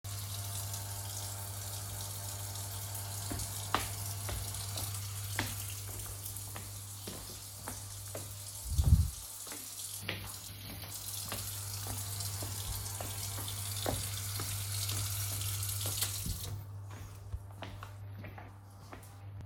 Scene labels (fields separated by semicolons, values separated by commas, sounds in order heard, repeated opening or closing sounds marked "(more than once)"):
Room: kitchen; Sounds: microwave, running water, footsteps